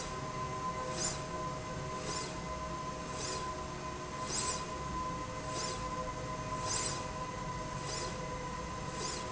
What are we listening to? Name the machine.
slide rail